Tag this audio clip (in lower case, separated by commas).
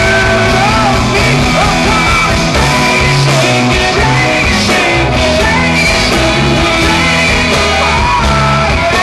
music, singing, inside a large room or hall